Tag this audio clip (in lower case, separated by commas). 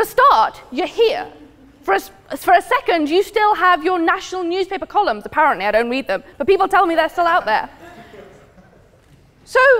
speech, woman speaking